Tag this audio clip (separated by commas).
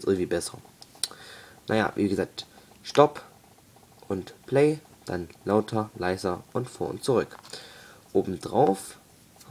Speech